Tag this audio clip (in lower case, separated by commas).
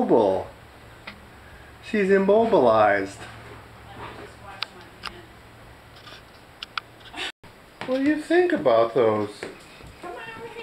domestic animals, speech